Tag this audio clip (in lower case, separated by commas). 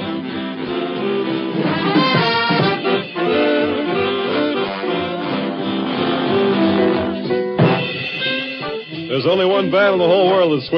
speech, music, saxophone